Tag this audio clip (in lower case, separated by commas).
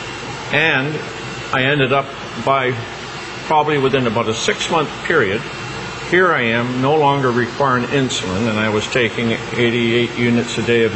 speech